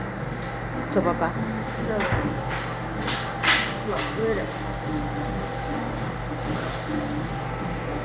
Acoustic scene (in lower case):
crowded indoor space